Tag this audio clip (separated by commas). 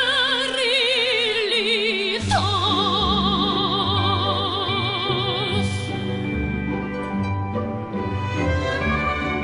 Music, Opera